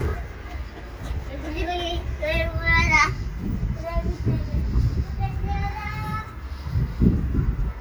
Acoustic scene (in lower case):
residential area